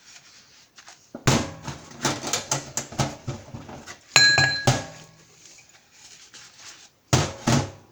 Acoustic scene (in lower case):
kitchen